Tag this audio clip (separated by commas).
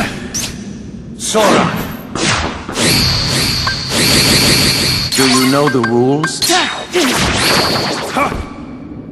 Speech